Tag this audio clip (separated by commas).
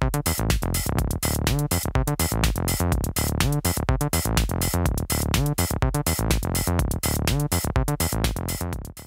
Music